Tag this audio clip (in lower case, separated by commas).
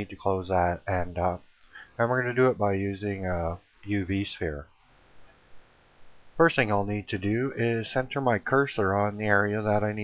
speech